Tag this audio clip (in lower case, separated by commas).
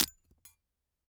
glass, shatter